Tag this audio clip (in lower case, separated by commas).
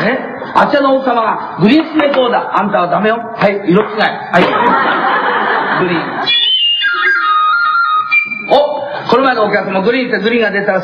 music, speech